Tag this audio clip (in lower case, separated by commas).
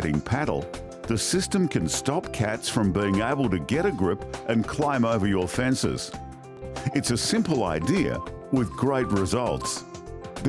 speech, music